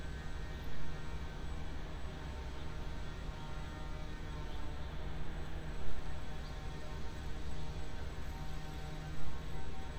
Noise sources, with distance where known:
background noise

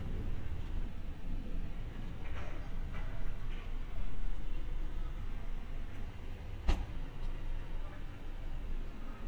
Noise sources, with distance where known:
background noise

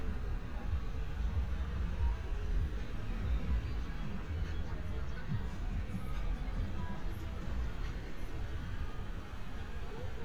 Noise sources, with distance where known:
music from an unclear source, far

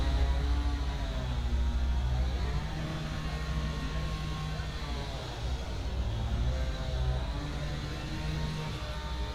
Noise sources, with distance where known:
unidentified powered saw

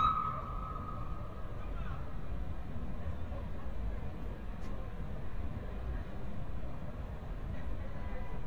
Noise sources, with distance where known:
siren, near
person or small group shouting, far

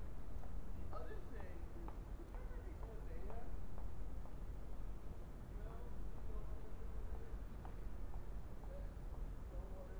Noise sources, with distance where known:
background noise

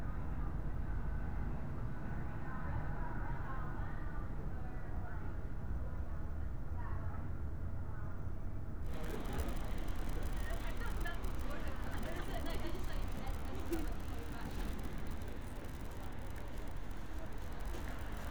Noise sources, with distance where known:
unidentified human voice

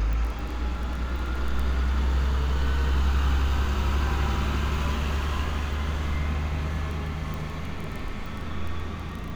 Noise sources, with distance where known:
large-sounding engine, near

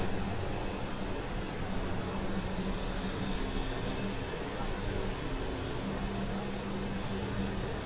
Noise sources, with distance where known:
unidentified impact machinery

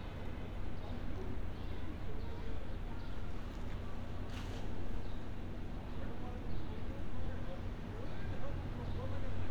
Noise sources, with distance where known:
background noise

